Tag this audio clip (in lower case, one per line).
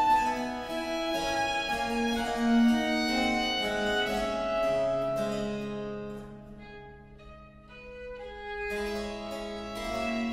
musical instrument
violin
music